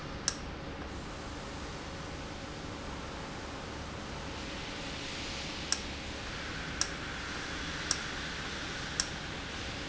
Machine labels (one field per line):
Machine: valve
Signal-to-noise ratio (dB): -6 dB